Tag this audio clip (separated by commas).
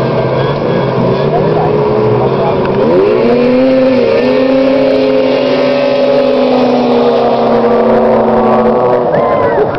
Speech